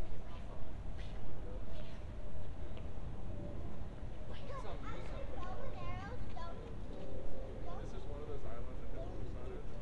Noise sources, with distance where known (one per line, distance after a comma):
person or small group talking